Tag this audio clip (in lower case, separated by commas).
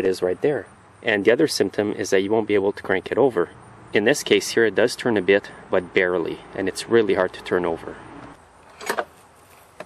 speech